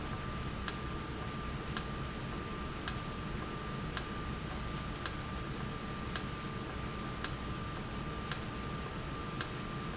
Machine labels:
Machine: valve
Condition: normal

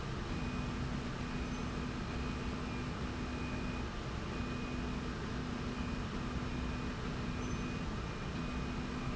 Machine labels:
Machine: slide rail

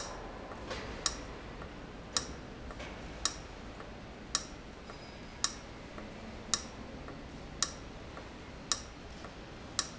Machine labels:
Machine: valve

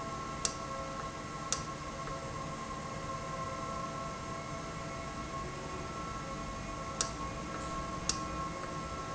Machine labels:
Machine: valve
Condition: normal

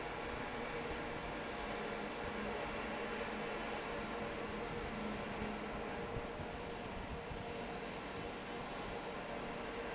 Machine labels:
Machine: fan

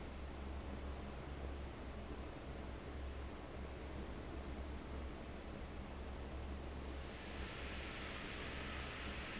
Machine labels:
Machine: fan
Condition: abnormal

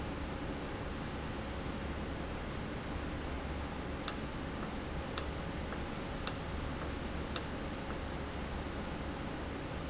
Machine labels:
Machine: valve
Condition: normal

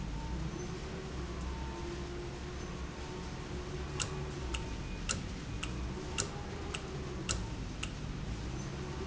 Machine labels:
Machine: valve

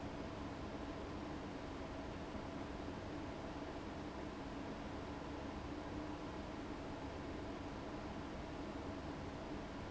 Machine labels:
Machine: fan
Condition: abnormal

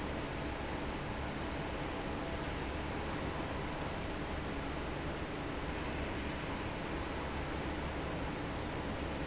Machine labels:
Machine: fan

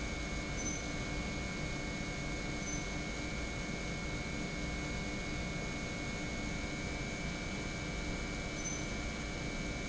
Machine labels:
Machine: pump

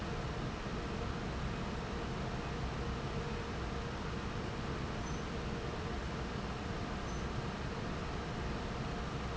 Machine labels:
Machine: fan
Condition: normal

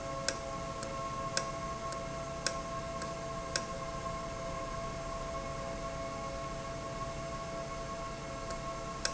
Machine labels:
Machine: valve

